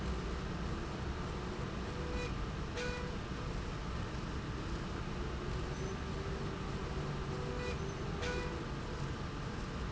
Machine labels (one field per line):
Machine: slide rail